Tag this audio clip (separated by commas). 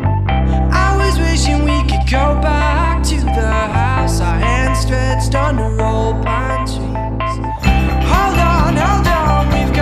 Music